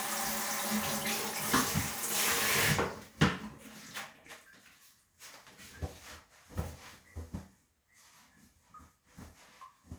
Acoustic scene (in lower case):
restroom